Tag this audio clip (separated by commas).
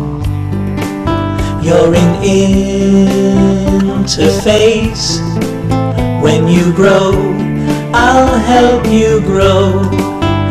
Music